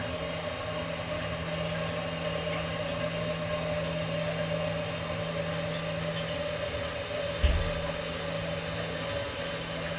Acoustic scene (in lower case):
restroom